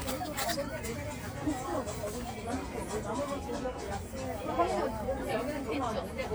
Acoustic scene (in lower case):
crowded indoor space